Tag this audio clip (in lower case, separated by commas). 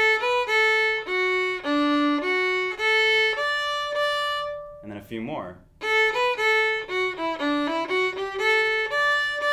speech, fiddle, musical instrument, music